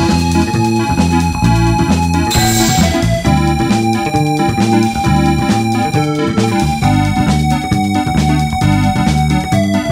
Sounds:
music, video game music

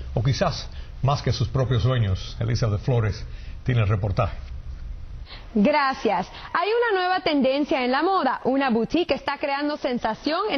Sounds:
speech

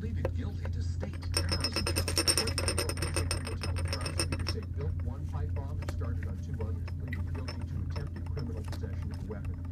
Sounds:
inside a small room, speech

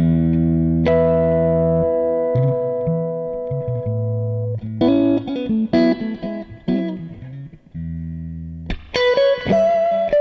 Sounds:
plucked string instrument, effects unit, music, guitar, electronic tuner

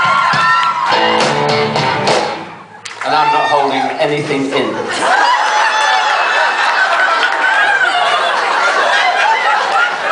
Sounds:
music, speech

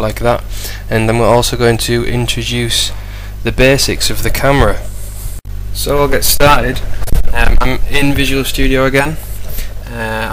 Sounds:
speech

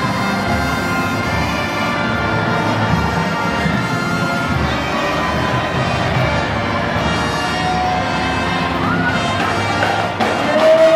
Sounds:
speech, music

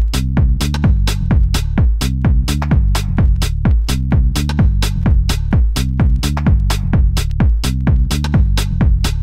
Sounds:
techno, music, electronic music

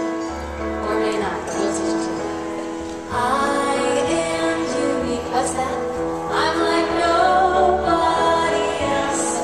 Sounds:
speech, music, happy music

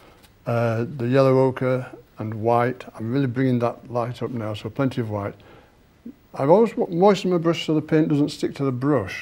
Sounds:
speech

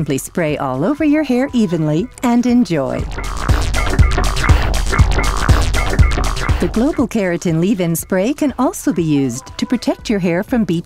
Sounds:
music, speech

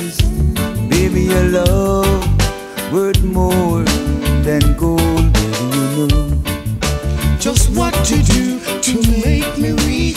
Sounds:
music, singing

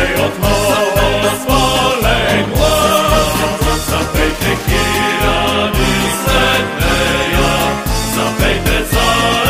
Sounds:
music

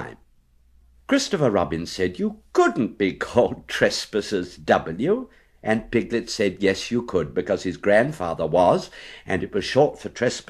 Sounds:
speech

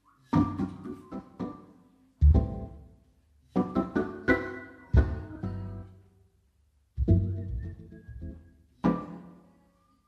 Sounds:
electronic organ, organ

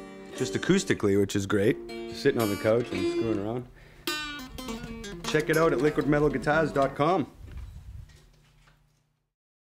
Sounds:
music, speech

